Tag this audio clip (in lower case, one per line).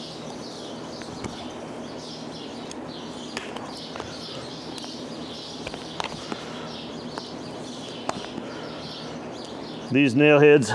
animal